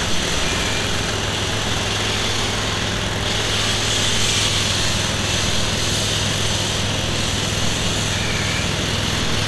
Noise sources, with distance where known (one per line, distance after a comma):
small or medium rotating saw, near